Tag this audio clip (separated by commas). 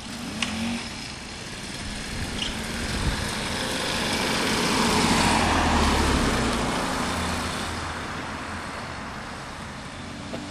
Vehicle